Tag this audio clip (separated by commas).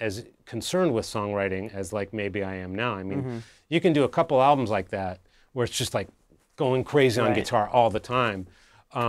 Speech